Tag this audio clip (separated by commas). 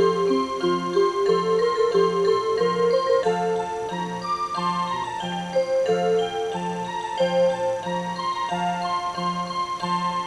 Music